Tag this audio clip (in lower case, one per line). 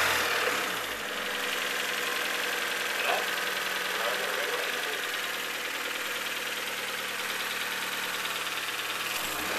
speech